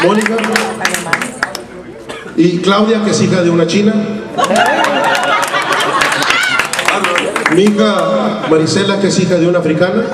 A man speaks, a crowd cheers